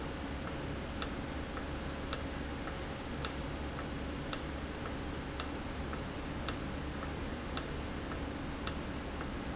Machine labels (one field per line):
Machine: valve